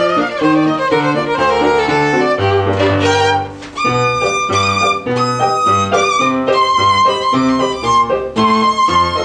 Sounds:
fiddle, musical instrument, music

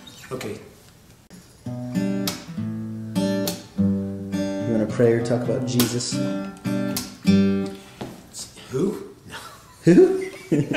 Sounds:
acoustic guitar, musical instrument, inside a small room, music, guitar, speech, plucked string instrument

